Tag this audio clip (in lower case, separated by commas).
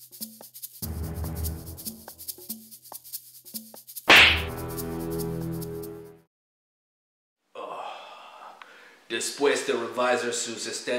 inside a small room, music, speech